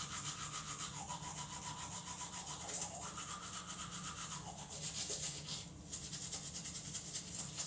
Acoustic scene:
restroom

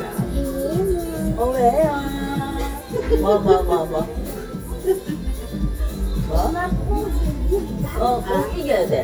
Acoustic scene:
restaurant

